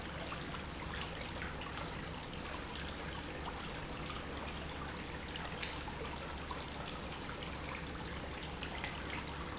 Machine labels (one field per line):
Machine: pump